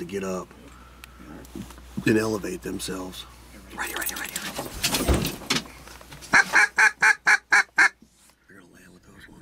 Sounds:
speech

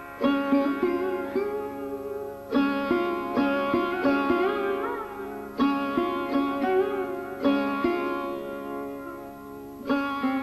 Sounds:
music

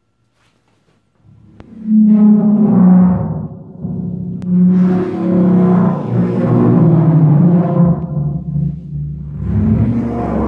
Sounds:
playing timpani

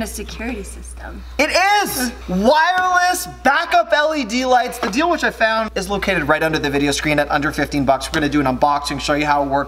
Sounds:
speech

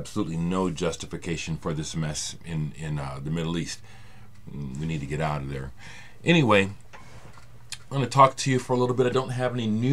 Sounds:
speech

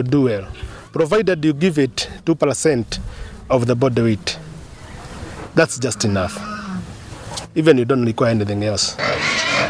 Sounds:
animal
speech
outside, rural or natural

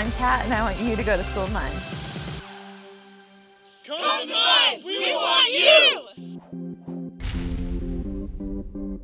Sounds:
speech
music

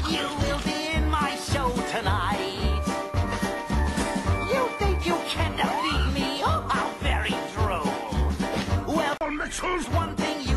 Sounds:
music
background music
speech

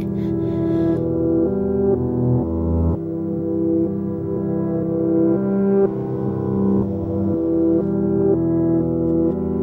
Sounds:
music

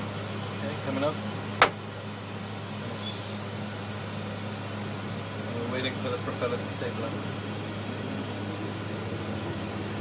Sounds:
speech

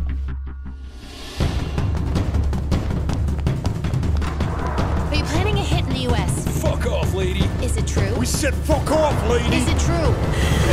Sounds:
music
speech

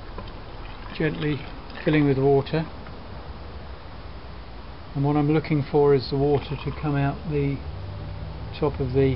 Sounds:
outside, rural or natural
speech

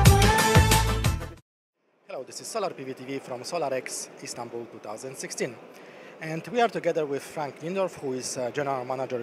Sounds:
speech
music

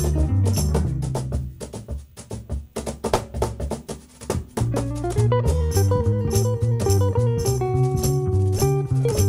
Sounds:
playing tambourine

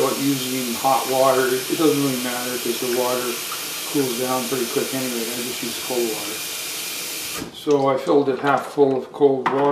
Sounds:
speech

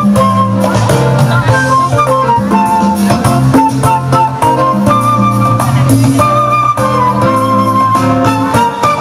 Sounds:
music
speech
flute

